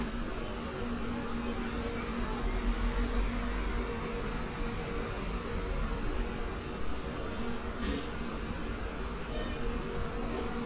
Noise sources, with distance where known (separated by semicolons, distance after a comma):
engine of unclear size, near